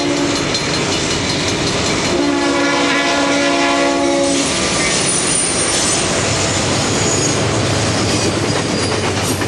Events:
0.0s-2.6s: bell
0.0s-9.4s: train
2.1s-4.5s: train horn
4.2s-5.4s: train wheels squealing
5.6s-6.1s: train wheels squealing
6.8s-7.6s: train wheels squealing
7.9s-8.4s: train wheels squealing
8.4s-9.4s: clickety-clack
8.5s-9.1s: train wheels squealing

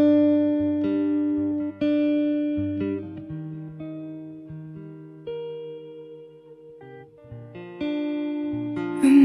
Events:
0.0s-9.2s: music

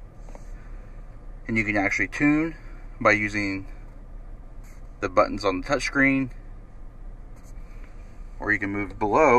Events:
0.0s-9.3s: mechanisms
0.1s-0.9s: surface contact
0.2s-0.3s: clicking
1.5s-2.5s: man speaking
2.5s-2.9s: breathing
3.0s-3.6s: man speaking
3.6s-3.9s: breathing
4.6s-4.8s: surface contact
5.0s-6.3s: man speaking
6.2s-6.4s: clicking
7.3s-8.2s: surface contact
7.8s-7.9s: clicking
8.4s-9.3s: man speaking
8.9s-8.9s: clicking

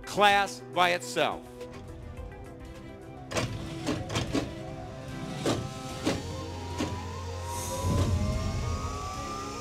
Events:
0.0s-9.6s: music
0.1s-0.6s: man speaking
0.7s-1.4s: man speaking
1.5s-1.9s: generic impact sounds
3.2s-3.5s: generic impact sounds
3.3s-9.6s: mechanisms
3.8s-4.5s: generic impact sounds
5.3s-5.6s: generic impact sounds
6.0s-6.2s: generic impact sounds
6.7s-7.0s: generic impact sounds
7.9s-8.3s: generic impact sounds

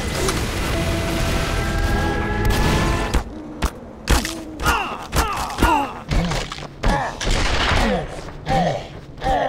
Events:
0.0s-3.2s: music
0.0s-9.4s: video game sound
0.2s-0.5s: sound effect
2.4s-3.2s: sound effect
3.6s-3.8s: sound effect
4.1s-4.4s: sound effect
4.6s-4.9s: sound effect
4.6s-4.9s: groan
5.2s-5.4s: sound effect
5.2s-5.4s: groan
5.6s-5.9s: groan
5.6s-5.9s: sound effect
6.1s-6.6s: sound effect
6.8s-7.1s: sound effect
6.8s-7.0s: groan
7.2s-8.1s: sound effect
8.4s-8.9s: sound effect

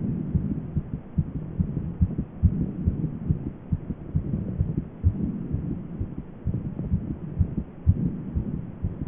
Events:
0.0s-0.2s: heartbeat
0.0s-8.9s: mechanisms
0.3s-0.5s: heartbeat
0.7s-0.9s: heartbeat
1.1s-1.4s: heartbeat
1.5s-1.8s: heartbeat
2.0s-2.2s: heartbeat
2.4s-2.6s: heartbeat
2.8s-3.0s: heartbeat
3.2s-3.5s: heartbeat
3.7s-4.0s: heartbeat
4.1s-4.4s: heartbeat
4.6s-4.8s: heartbeat
5.0s-5.3s: heartbeat
5.5s-5.8s: heartbeat
6.0s-6.1s: heartbeat
6.4s-6.7s: heartbeat
6.9s-7.1s: heartbeat
7.3s-7.6s: heartbeat
7.8s-8.1s: heartbeat
8.3s-8.6s: heartbeat
8.8s-8.9s: heartbeat

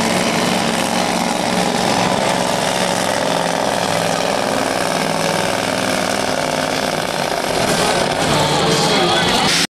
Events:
0.0s-9.6s: truck
7.6s-9.6s: crowd

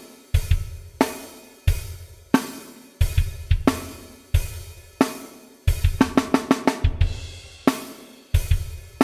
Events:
0.0s-9.0s: music

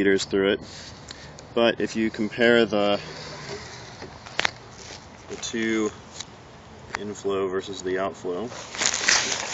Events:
0.0s-0.6s: male speech
0.0s-9.5s: background noise
0.6s-0.9s: scrape
1.0s-1.1s: clicking
1.1s-1.3s: breathing
1.3s-1.4s: clicking
1.5s-2.9s: male speech
3.4s-3.5s: generic impact sounds
4.0s-4.1s: generic impact sounds
4.2s-4.5s: clicking
4.7s-5.1s: crinkling
5.2s-5.9s: crinkling
5.3s-5.9s: male speech
6.1s-6.2s: clicking
6.8s-8.5s: male speech
6.9s-7.0s: clicking
8.5s-9.5s: crinkling

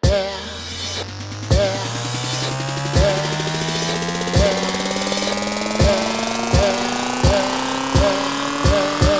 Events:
0.0s-0.3s: human voice
0.0s-9.1s: music
1.5s-1.7s: human voice
2.9s-3.1s: human voice
4.3s-4.6s: human voice
5.8s-6.0s: human voice
6.5s-6.8s: human voice
7.2s-7.4s: human voice
7.9s-8.2s: human voice
8.6s-8.8s: human voice
9.0s-9.1s: human voice

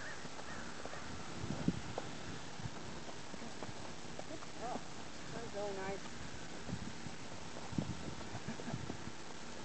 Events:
0.0s-1.1s: bird vocalization
0.0s-9.6s: background noise
0.2s-0.4s: clip-clop
0.7s-1.1s: clip-clop
1.4s-2.0s: clip-clop
2.9s-3.3s: clip-clop
3.5s-3.9s: clip-clop
4.1s-4.4s: clip-clop
4.2s-4.8s: male speech
4.7s-5.0s: clip-clop
5.1s-6.0s: bird vocalization
5.3s-6.0s: male speech
5.9s-6.2s: clip-clop
7.7s-9.1s: clip-clop

